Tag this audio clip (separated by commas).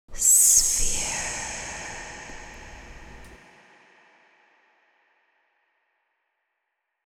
Whispering, Human voice